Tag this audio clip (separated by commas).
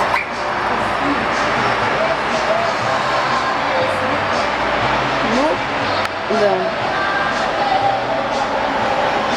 Music, Speech